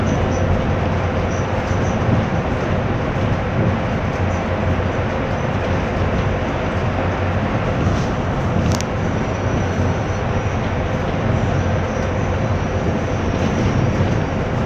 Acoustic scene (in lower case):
bus